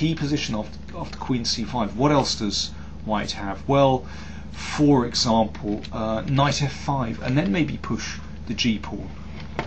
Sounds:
inside a small room
speech

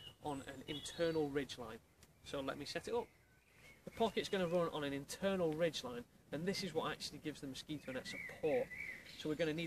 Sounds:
speech

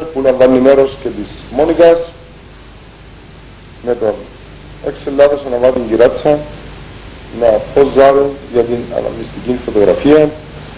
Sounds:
speech

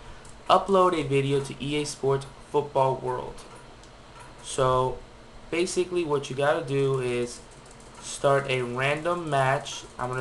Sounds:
speech

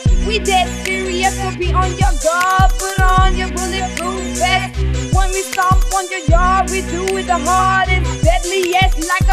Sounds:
hip hop music
music
rapping

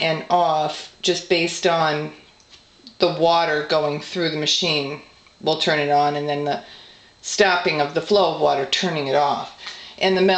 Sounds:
speech

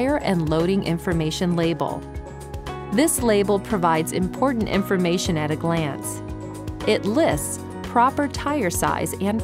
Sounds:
speech
music

